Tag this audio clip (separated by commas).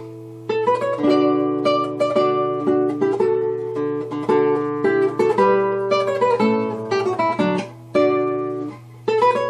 Plucked string instrument, Strum, Guitar, Music, Musical instrument